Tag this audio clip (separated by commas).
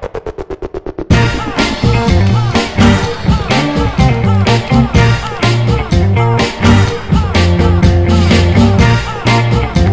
Music